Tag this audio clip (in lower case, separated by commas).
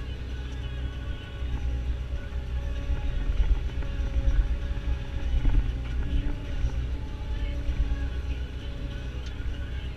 music